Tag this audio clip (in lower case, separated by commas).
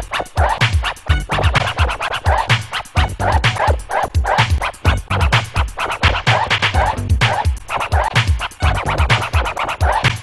scratching (performance technique), music